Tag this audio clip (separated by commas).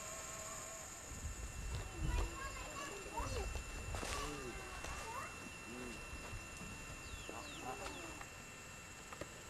footsteps, Speech